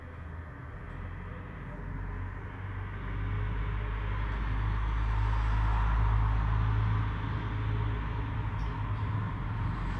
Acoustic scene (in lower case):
street